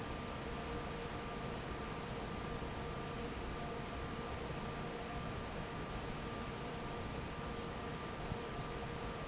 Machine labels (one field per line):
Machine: fan